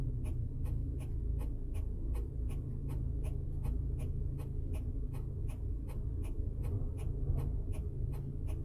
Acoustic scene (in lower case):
car